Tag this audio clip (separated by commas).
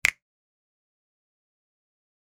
Finger snapping, Hands